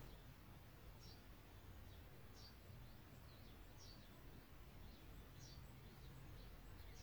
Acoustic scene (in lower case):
park